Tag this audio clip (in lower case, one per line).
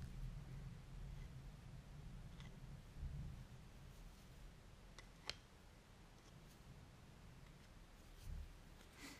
inside a small room
silence